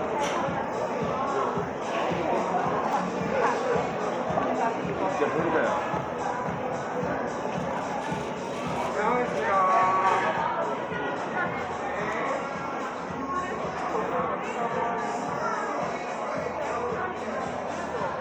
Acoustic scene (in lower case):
cafe